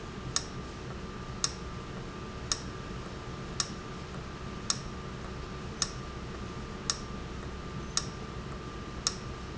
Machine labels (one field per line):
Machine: valve